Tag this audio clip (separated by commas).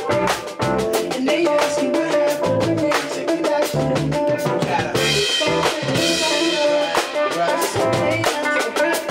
Music, Funk